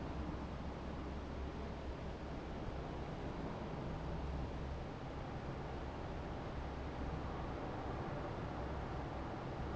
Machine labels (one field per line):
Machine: fan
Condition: normal